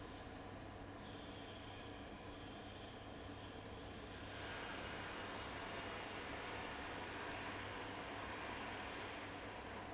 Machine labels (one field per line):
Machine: fan